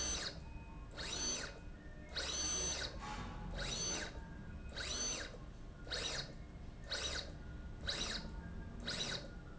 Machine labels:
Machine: slide rail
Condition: abnormal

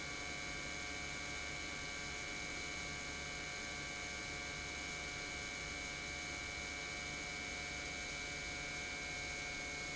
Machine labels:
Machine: pump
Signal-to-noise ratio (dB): 6 dB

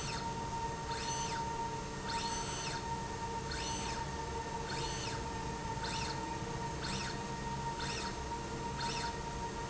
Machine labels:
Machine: slide rail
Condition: normal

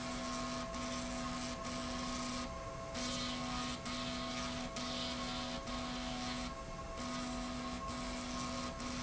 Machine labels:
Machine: slide rail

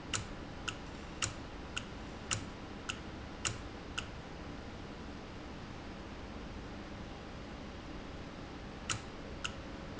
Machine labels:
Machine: valve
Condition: normal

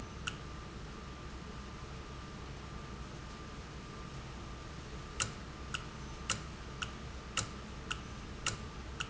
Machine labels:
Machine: valve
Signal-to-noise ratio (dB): 0 dB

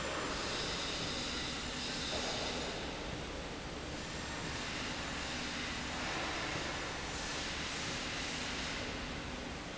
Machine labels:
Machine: slide rail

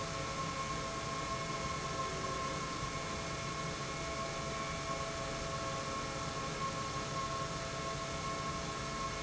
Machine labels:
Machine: pump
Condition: normal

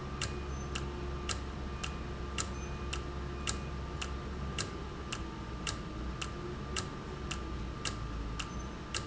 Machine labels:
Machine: valve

